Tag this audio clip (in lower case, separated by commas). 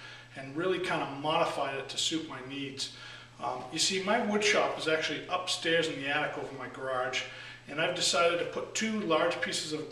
speech, inside a small room